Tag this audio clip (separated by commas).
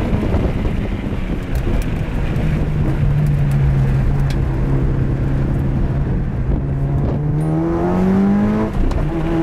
Car, Vehicle